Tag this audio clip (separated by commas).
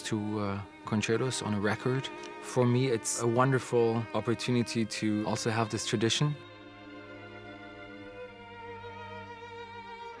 fiddle, Musical instrument, Speech, Music